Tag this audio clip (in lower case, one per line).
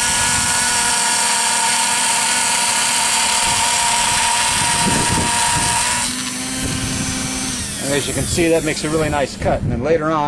speech